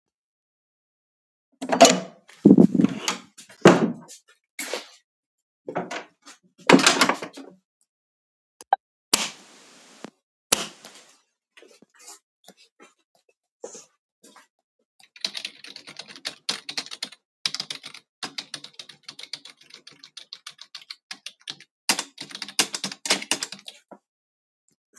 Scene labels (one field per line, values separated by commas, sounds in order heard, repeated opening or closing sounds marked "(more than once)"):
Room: bedroom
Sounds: door (more than once), light switch, keyboard typing